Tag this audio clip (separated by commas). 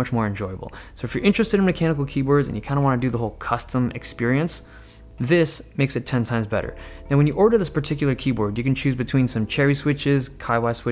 typing on typewriter